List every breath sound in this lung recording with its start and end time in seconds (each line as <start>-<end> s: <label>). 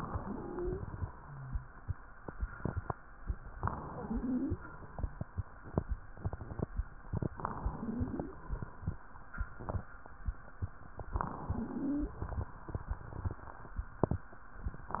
0.00-1.05 s: inhalation
0.16-0.85 s: wheeze
3.53-4.58 s: inhalation
3.85-4.55 s: wheeze
7.31-8.35 s: inhalation
7.61-8.30 s: wheeze
11.10-12.15 s: inhalation
11.44-12.14 s: wheeze
14.96-15.00 s: inhalation